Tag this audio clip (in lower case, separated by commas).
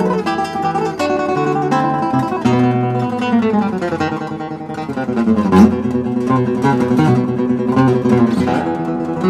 music